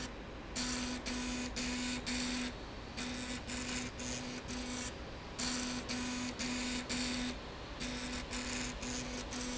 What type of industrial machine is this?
slide rail